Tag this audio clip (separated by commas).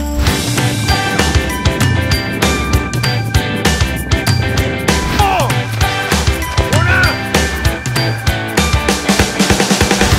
Music, Speech